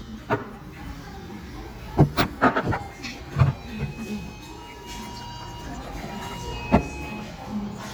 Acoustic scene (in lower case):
restaurant